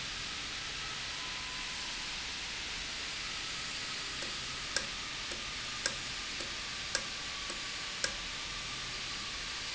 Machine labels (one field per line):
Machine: valve